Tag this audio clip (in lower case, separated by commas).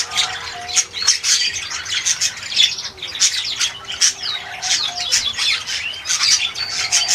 wild animals, bird, bird call, tweet, animal